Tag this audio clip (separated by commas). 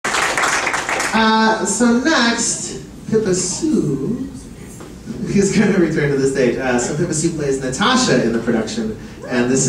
Male speech